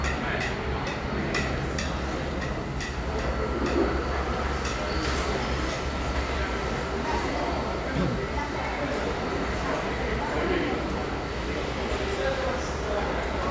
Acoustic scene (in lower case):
crowded indoor space